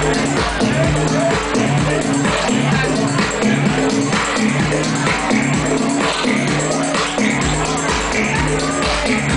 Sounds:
speech, music

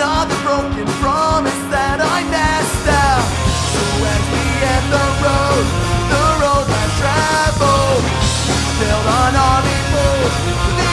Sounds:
music, psychedelic rock

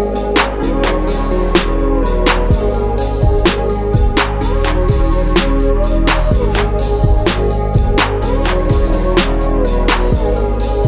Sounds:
music

